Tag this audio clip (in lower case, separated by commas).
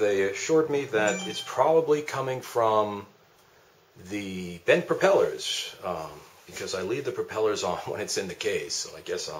speech